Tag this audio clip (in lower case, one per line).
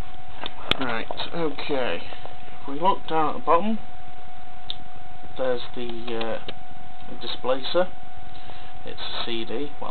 speech